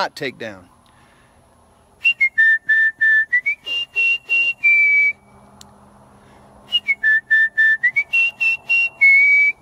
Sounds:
people whistling

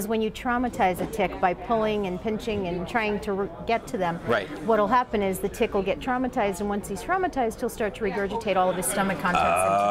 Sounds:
speech

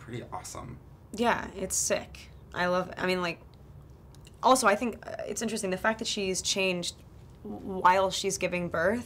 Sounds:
speech

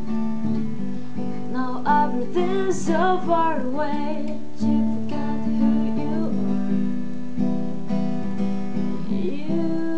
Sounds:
plucked string instrument, music, musical instrument, guitar, acoustic guitar, strum

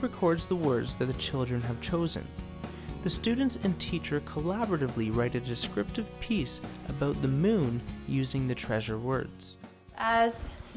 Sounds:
music, speech

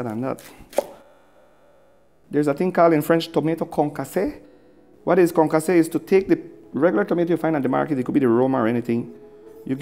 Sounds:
music, speech

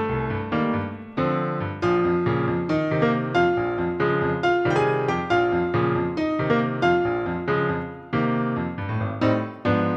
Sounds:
music

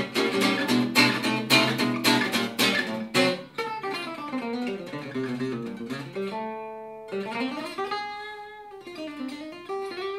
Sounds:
plucked string instrument, musical instrument, guitar, strum, acoustic guitar, music

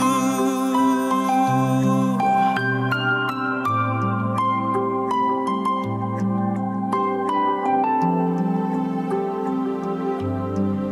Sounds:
new-age music, music

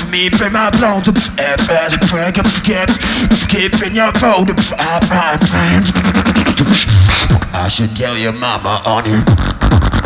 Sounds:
beat boxing

